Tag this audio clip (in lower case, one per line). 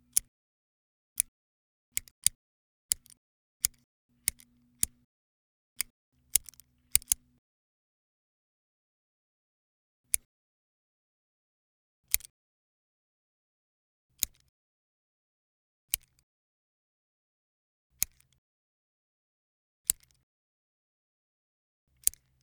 domestic sounds
scissors